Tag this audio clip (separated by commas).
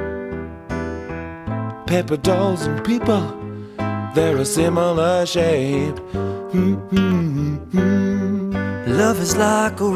Music